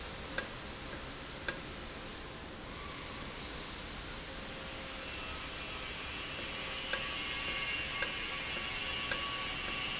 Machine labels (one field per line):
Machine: valve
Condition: normal